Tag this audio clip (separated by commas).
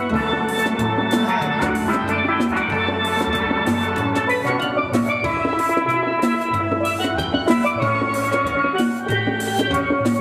playing steelpan